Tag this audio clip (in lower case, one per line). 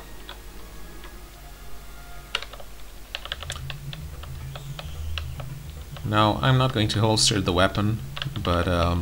typing